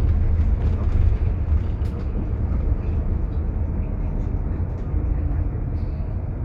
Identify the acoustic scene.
bus